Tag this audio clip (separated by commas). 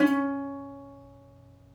Musical instrument, Plucked string instrument, Music